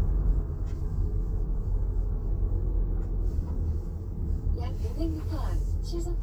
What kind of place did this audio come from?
car